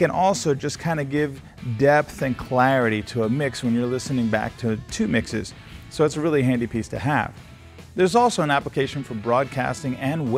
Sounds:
Music, Speech

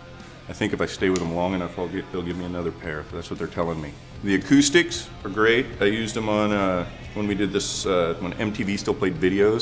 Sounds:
Music, Speech

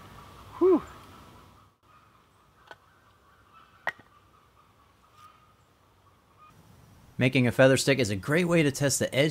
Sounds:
Speech, outside, rural or natural

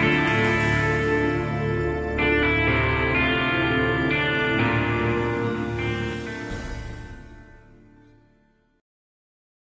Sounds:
Music

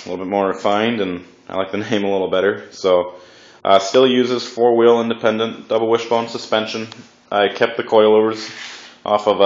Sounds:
Speech

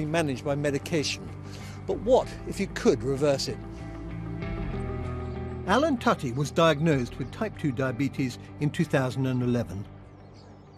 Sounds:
reversing beeps

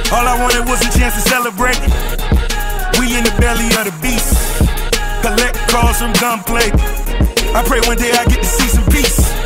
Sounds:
Music, Rhythm and blues

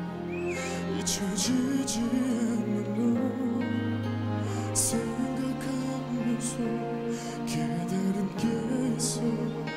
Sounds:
Music

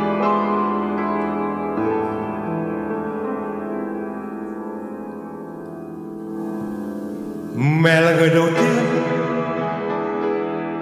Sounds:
Music

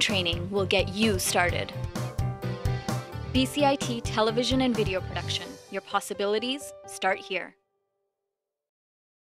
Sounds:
Music, Speech

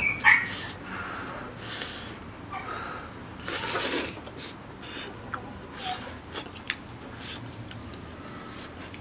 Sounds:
people eating noodle

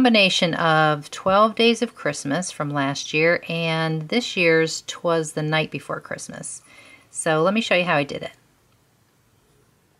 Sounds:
Speech

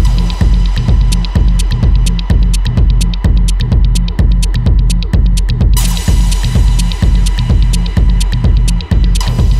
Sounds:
Music

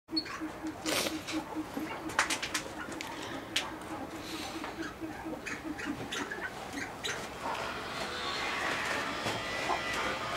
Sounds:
pheasant crowing

